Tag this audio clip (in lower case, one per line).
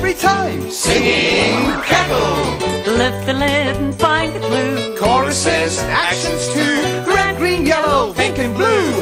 music
male singing